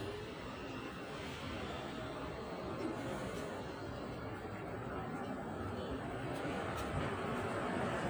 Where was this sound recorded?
in a residential area